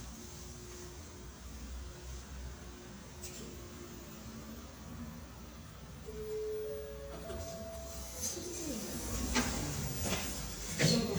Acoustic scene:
elevator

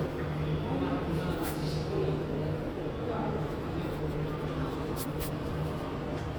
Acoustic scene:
subway station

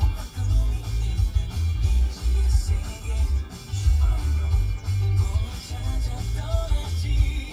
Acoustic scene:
car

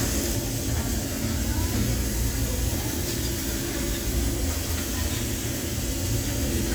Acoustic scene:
restaurant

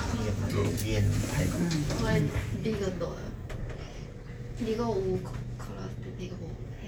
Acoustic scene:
elevator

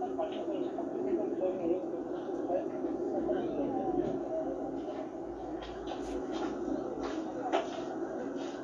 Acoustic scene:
park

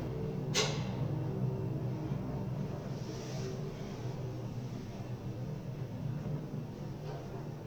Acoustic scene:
elevator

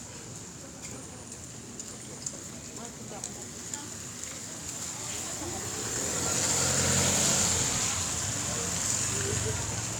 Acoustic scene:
residential area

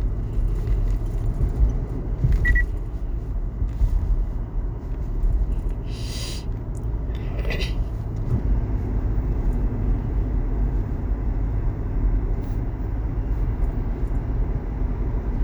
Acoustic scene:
car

